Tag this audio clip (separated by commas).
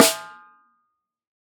Music, Percussion, Snare drum, Musical instrument, Drum